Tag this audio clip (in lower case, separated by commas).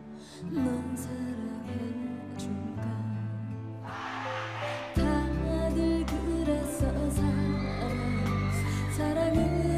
lullaby, rhythm and blues, music